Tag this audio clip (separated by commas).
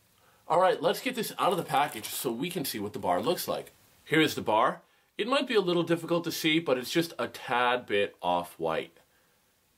Speech